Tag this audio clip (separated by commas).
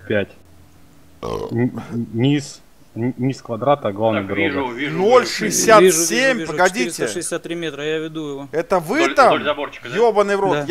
Speech